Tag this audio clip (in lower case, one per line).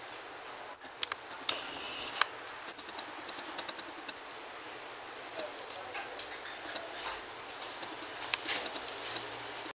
speech